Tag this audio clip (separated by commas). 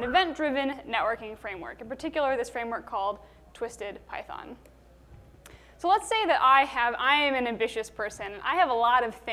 Speech